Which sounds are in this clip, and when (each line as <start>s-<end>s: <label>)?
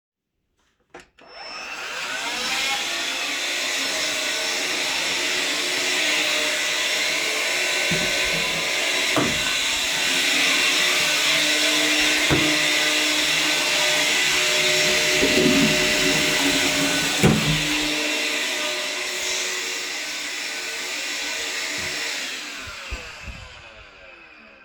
1.1s-24.6s: vacuum cleaner
15.1s-17.7s: toilet flushing